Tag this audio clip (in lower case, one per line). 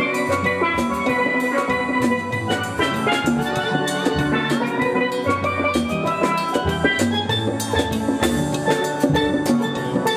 playing steelpan